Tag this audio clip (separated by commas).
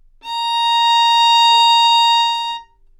Musical instrument, Music, Bowed string instrument